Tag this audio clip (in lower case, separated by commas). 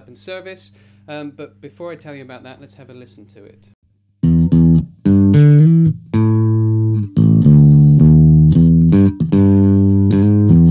guitar, plucked string instrument, music, speech, strum, musical instrument